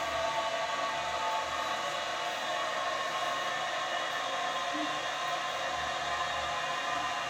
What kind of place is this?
restroom